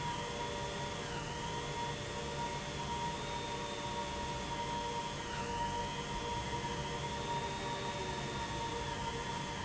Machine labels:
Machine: pump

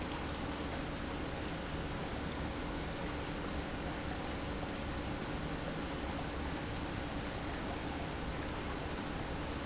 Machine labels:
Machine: pump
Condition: normal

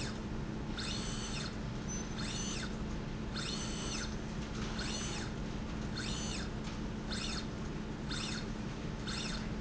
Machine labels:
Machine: slide rail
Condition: normal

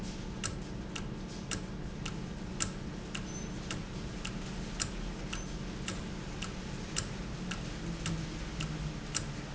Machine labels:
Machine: valve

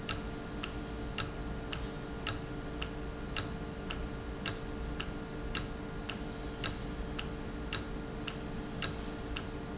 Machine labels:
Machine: valve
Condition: normal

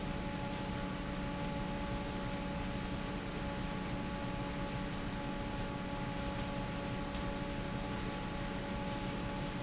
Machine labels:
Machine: fan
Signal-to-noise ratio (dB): -6 dB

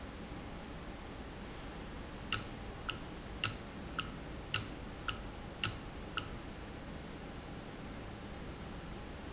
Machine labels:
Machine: valve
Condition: normal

